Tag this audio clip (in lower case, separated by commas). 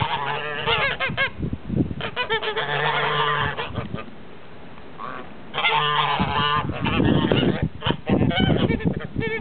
goose, fowl